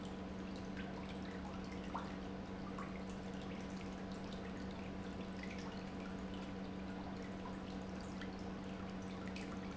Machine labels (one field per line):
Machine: pump